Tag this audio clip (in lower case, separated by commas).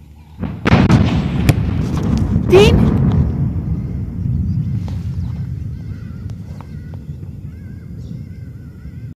explosion, speech